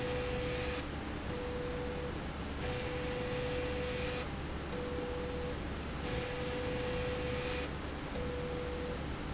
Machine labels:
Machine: slide rail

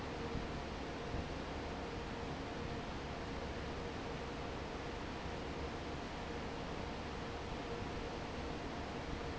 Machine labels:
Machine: fan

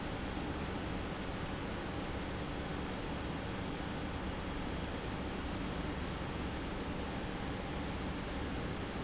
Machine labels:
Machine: pump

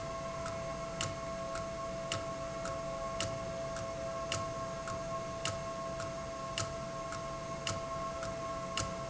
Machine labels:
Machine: valve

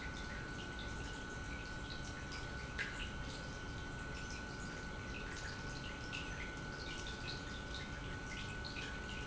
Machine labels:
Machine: pump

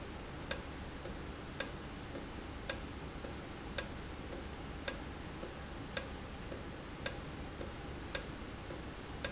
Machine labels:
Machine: valve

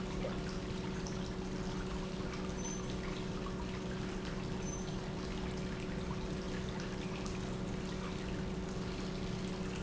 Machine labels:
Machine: pump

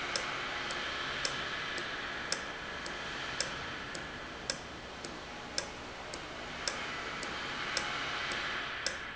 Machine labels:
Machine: valve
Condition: normal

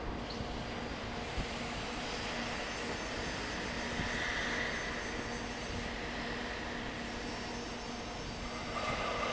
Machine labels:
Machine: fan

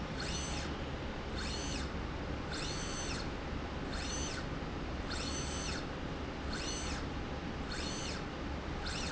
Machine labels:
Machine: slide rail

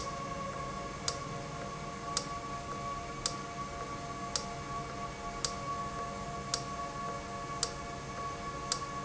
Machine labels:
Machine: valve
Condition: normal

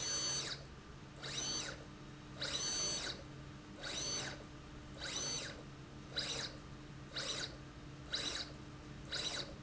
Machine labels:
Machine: slide rail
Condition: abnormal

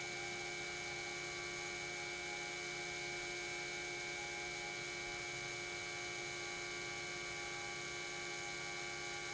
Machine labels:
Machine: pump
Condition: normal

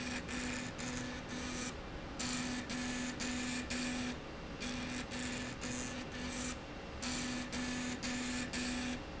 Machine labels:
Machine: slide rail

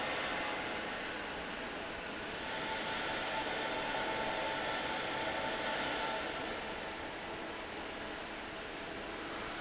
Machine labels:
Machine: fan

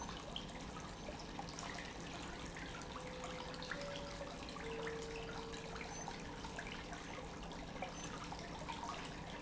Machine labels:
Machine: pump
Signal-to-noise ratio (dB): 6 dB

